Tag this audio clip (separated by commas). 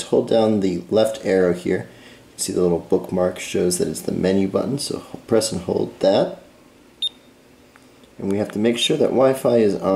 Speech